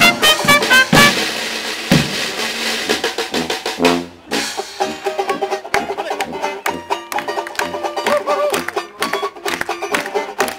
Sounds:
Blues, Rhythm and blues, Music, Speech

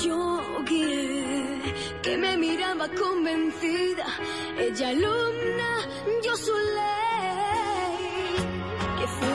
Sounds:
Music

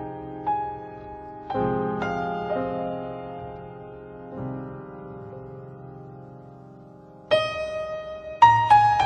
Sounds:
Music

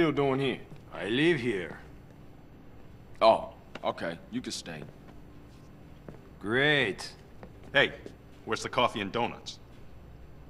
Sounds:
Speech

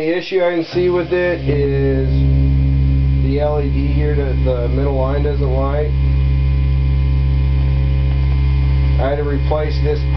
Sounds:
Speech

